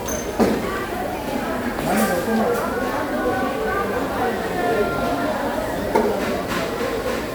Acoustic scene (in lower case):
restaurant